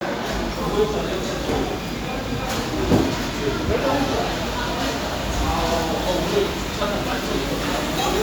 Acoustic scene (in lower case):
cafe